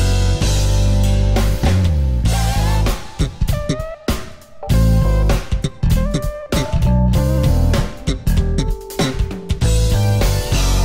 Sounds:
Electronic tuner, Plucked string instrument, Music, Musical instrument, Guitar

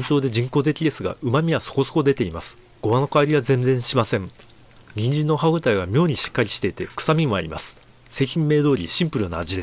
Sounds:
Speech

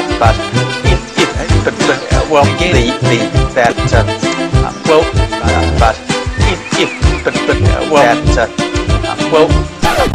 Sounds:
Music, Speech

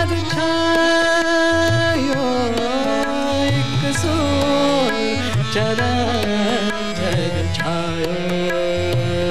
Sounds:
Tabla, Musical instrument, Singing, Music of Asia, Music, Carnatic music

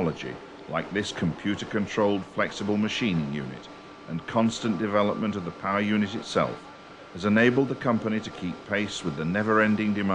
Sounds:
Speech

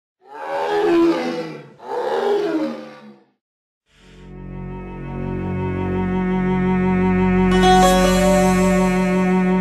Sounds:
Music, Animal, roaring cats, Wild animals

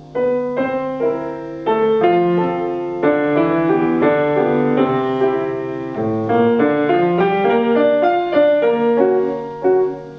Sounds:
Music

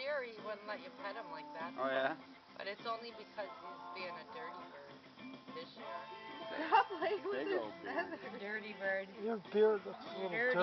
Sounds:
Music, Speech

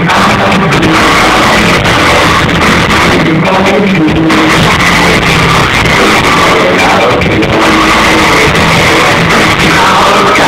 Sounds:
Cacophony, Music

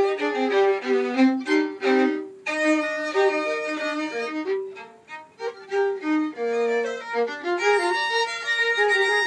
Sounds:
fiddle, Musical instrument, Music

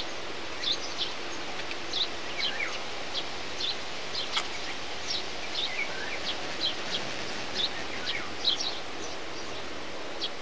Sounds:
Environmental noise, Bird

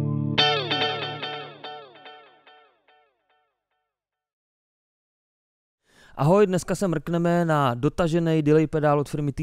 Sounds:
Musical instrument, Music, Speech

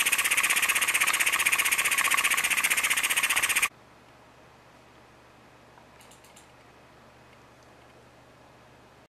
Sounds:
Idling, Medium engine (mid frequency), Engine

